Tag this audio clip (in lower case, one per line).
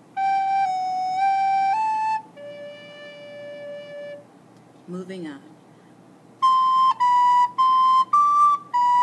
musical instrument
flute
music
wind instrument